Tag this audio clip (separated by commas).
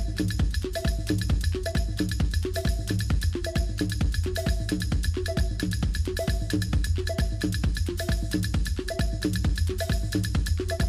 Techno, Electronic music, Music